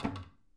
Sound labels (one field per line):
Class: cupboard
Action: closing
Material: wooden